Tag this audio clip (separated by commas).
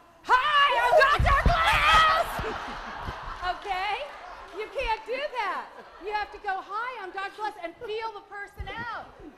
Speech